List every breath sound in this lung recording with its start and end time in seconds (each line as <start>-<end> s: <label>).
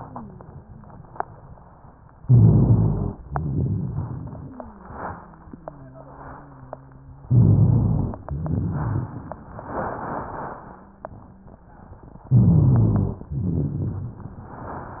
2.23-3.17 s: inhalation
2.23-3.17 s: rhonchi
3.27-4.32 s: rhonchi
3.27-7.23 s: exhalation
4.32-7.23 s: wheeze
7.27-8.21 s: inhalation
7.27-8.21 s: rhonchi
8.27-9.30 s: rhonchi
8.27-12.09 s: exhalation
10.62-11.65 s: wheeze
12.29-13.23 s: inhalation
12.29-13.23 s: rhonchi
13.31-14.19 s: rhonchi
13.31-15.00 s: exhalation